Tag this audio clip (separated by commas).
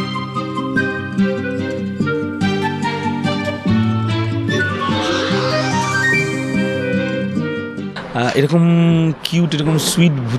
Speech, Music, inside a small room